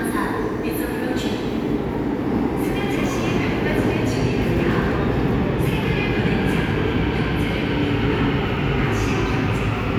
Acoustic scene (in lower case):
subway station